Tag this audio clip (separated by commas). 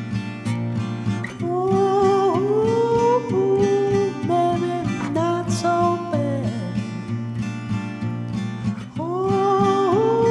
Music